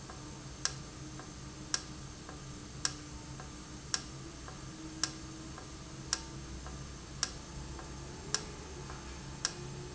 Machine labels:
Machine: valve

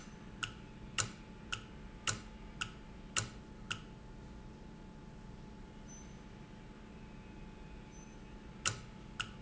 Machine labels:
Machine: valve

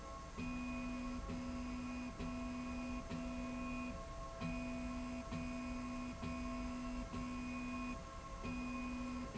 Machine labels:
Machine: slide rail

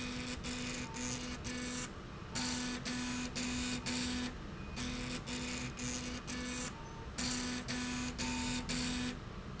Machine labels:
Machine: slide rail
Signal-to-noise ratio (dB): 0 dB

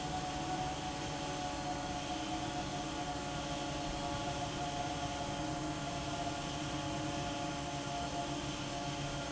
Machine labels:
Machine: fan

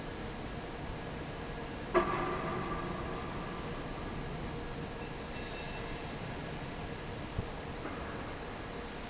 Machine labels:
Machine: fan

